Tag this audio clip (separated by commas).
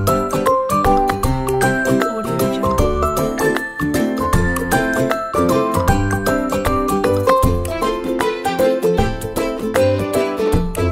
Music, Speech